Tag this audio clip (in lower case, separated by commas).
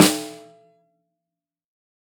snare drum, music, percussion, musical instrument, drum